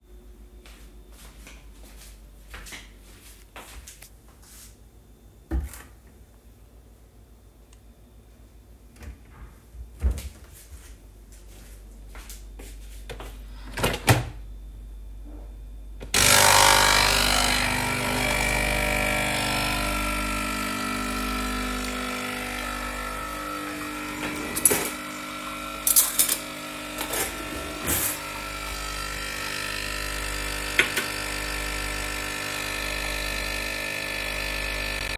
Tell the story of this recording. I started the coffee machine. While waiting for the coffee to brew, I opened a kitchen drawer to find a spoon. After taking the spoon out, I closed the drawer and waited for the machine to finish.